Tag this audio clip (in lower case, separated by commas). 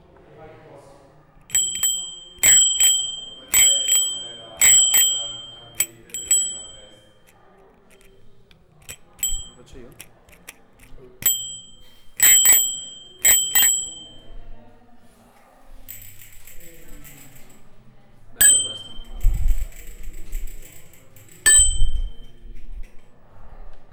vehicle, alarm, bicycle bell, bell, bicycle